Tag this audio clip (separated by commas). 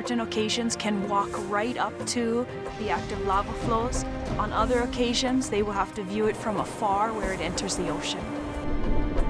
Speech, Music